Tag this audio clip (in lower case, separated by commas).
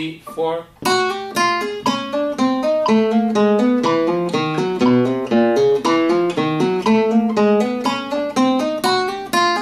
pizzicato